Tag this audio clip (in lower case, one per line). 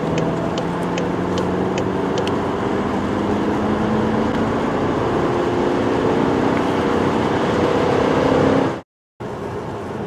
vehicle
car